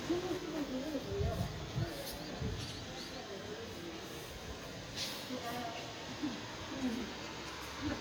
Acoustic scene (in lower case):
residential area